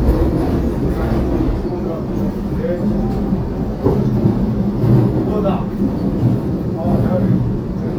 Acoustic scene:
subway train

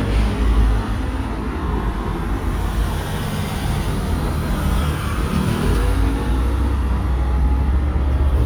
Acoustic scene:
street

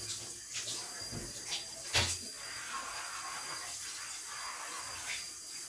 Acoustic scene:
restroom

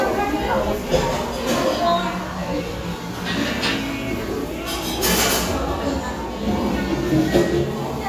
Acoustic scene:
cafe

